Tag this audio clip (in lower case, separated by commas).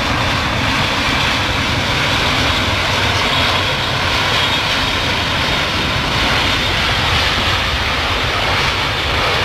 vehicle, jet engine, fixed-wing aircraft, aircraft, aircraft engine